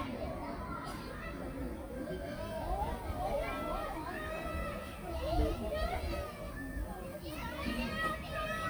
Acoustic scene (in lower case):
park